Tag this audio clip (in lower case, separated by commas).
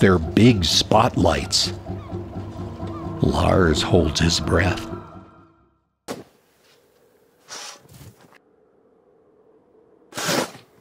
animal, music, speech